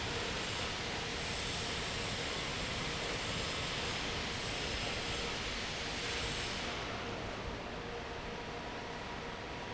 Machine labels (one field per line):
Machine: fan